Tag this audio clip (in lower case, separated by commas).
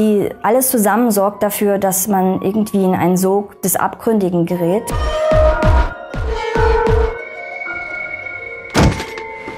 thunk, speech, music, inside a small room